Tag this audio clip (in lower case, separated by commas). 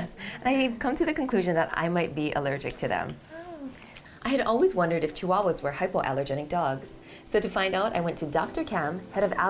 music, speech